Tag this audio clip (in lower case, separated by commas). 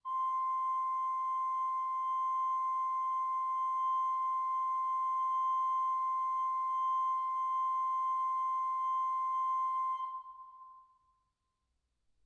organ, music, keyboard (musical), musical instrument